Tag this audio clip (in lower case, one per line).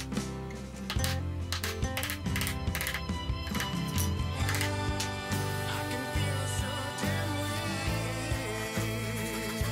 wood
music
tools